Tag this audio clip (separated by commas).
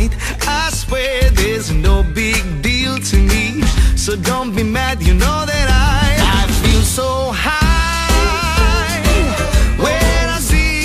Music